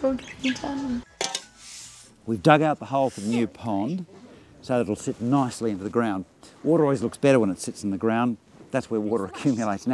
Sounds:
Speech, outside, urban or man-made

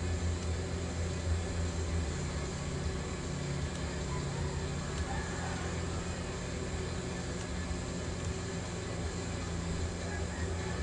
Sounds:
Car, auto racing, Vehicle

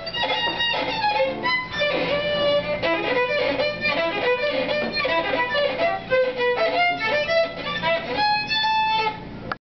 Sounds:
Violin, Music, Musical instrument

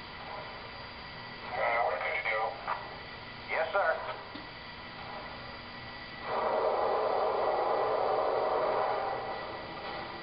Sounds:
Speech

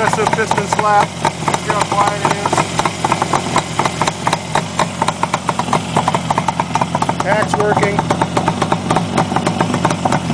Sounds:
Vehicle, Speech, Motorcycle

